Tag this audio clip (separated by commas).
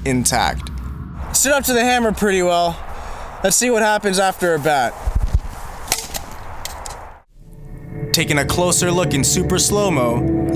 Speech